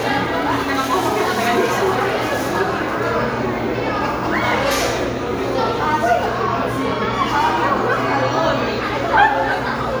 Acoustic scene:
crowded indoor space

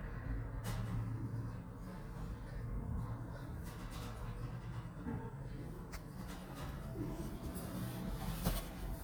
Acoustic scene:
elevator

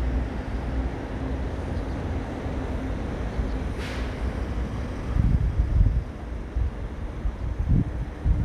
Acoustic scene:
street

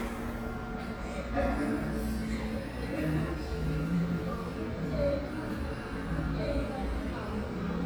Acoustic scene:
cafe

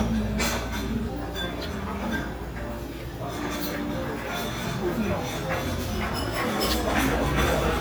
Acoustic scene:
restaurant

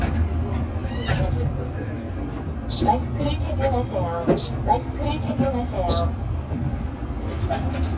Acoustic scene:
bus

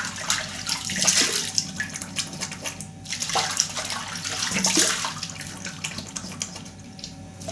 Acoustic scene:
restroom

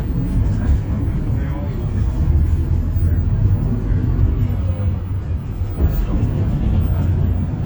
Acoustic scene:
bus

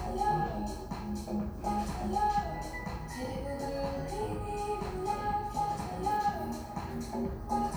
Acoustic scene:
cafe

